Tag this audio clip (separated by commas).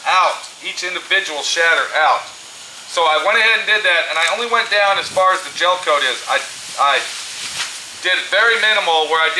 Speech